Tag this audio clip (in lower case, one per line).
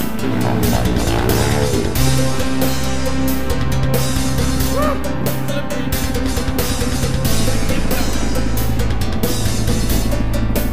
vehicle
music